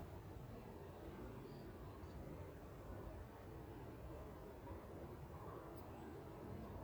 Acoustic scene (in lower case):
park